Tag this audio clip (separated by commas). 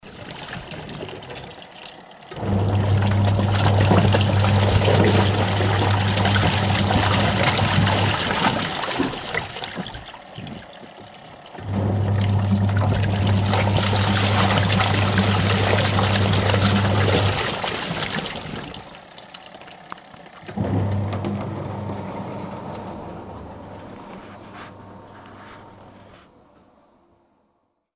Engine